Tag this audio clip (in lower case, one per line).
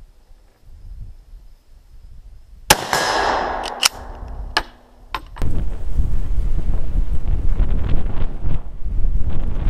machine gun shooting